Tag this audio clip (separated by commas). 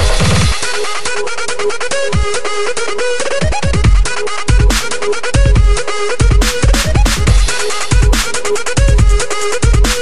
Music, Drum and bass